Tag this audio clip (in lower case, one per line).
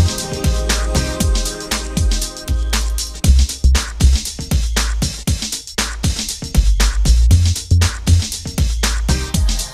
music